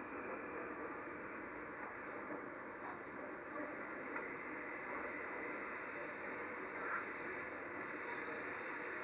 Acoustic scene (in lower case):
subway train